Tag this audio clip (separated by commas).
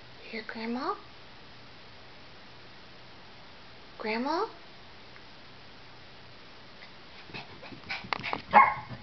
Speech, Yip